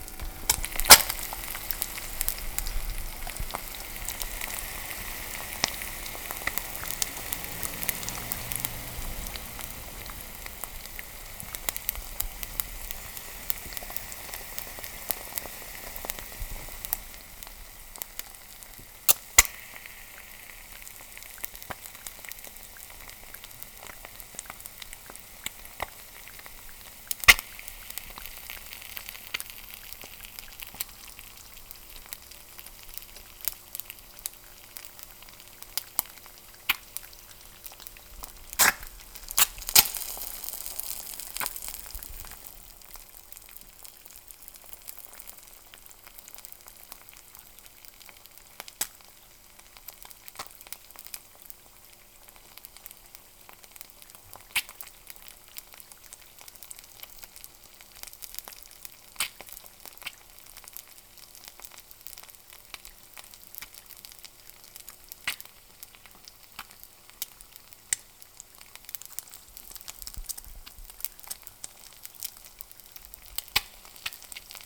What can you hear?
cooking